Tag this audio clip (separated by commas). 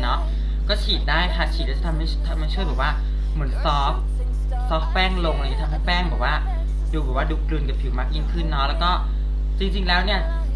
Speech